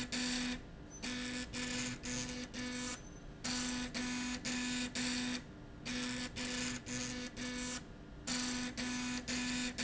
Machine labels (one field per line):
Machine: slide rail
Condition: abnormal